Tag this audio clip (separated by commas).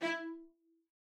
Bowed string instrument, Musical instrument, Music